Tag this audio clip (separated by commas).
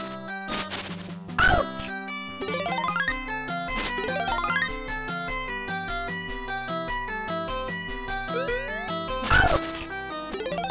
Music